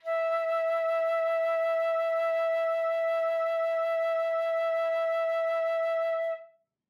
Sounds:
musical instrument, music, woodwind instrument

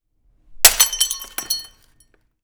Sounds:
shatter, glass

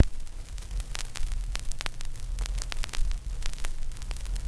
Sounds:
crackle

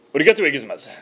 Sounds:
speech, human voice

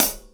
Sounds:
music, hi-hat, musical instrument, cymbal, percussion

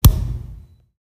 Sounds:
thump

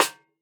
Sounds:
drum, musical instrument, percussion, music, snare drum

